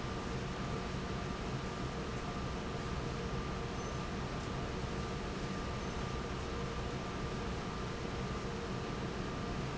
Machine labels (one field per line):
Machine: fan